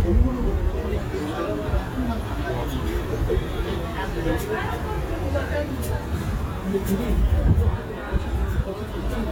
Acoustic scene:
restaurant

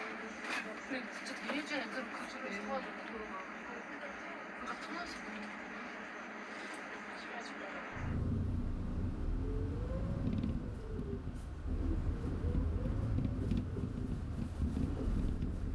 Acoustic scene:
bus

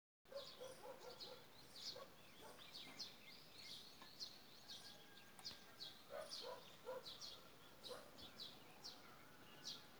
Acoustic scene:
park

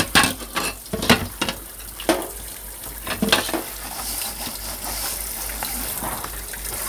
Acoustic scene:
kitchen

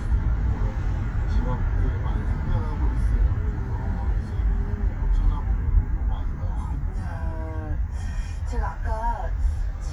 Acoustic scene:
car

